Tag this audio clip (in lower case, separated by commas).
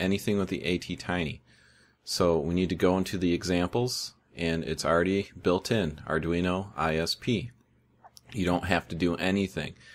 speech, inside a small room